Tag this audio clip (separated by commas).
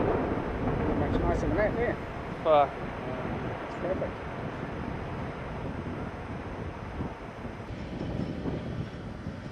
Speech